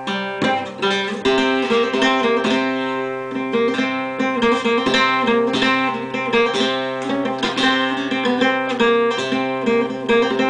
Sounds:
Music, Musical instrument, Guitar

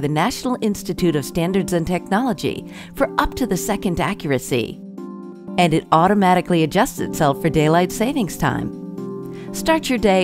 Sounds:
Music, Speech

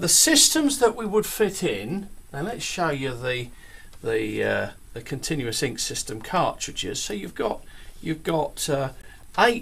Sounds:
Speech

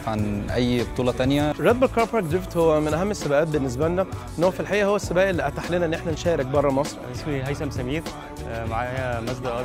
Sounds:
Music, Speech

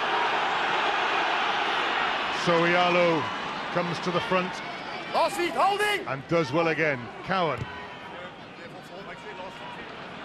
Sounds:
Speech

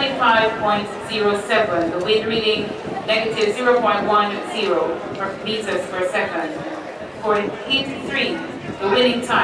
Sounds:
Speech, outside, urban or man-made

